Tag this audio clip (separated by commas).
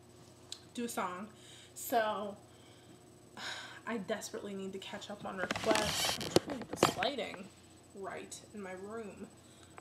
Speech